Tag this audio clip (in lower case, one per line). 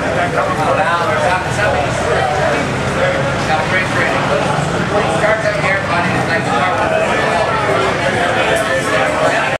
speech